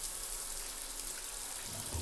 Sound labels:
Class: water tap